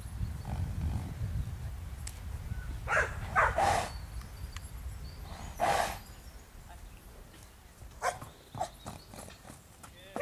A dog barks and a horse neighs a couple of times